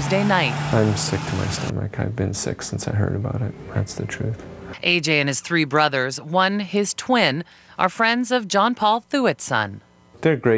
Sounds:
speech
vehicle

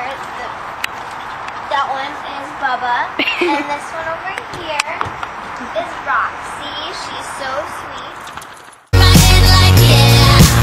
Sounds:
speech
music

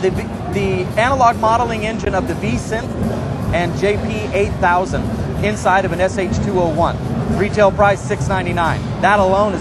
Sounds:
speech
music

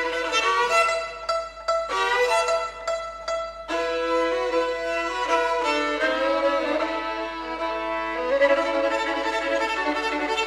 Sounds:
musical instrument
bowed string instrument
violin
music

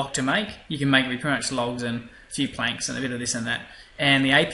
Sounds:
speech

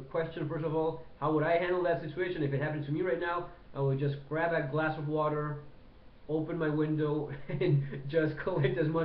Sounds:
speech

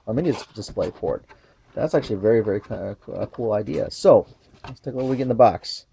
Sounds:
speech

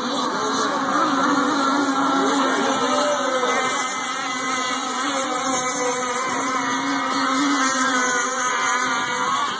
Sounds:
wind
wind noise (microphone)

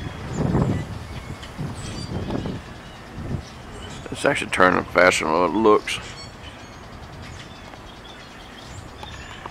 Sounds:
speech
wind
outside, rural or natural

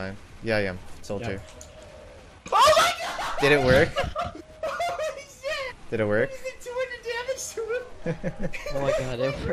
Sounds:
speech

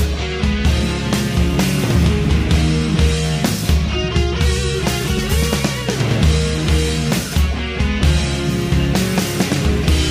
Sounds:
heavy metal
music
progressive rock
rock music

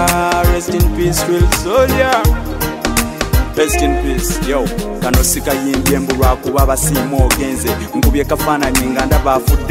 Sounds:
music
rhythm and blues

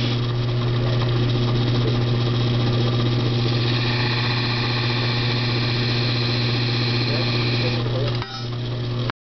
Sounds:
speech

